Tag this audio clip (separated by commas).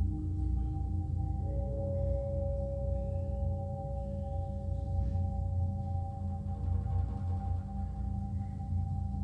Music, Percussion